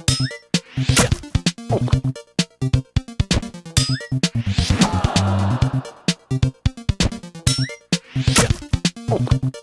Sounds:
sampler

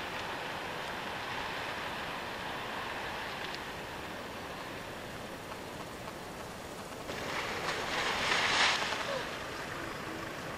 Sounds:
wind

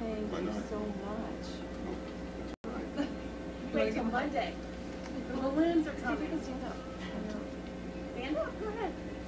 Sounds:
speech

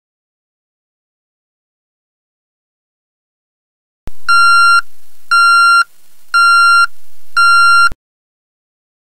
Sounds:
silence

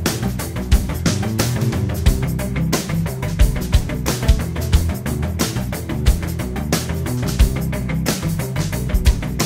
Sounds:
music

